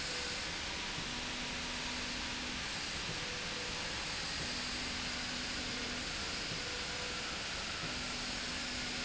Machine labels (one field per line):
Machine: slide rail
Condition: normal